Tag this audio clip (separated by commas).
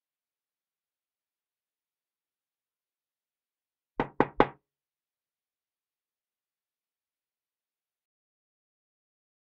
Knock